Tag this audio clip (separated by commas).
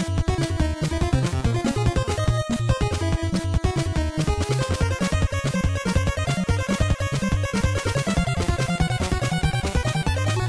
Music